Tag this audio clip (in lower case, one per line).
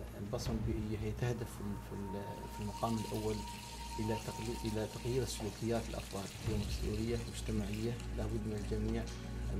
speech